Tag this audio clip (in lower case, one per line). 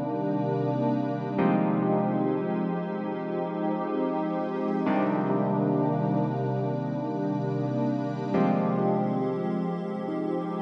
soundtrack music
music